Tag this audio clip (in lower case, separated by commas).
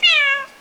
animal, pets, cat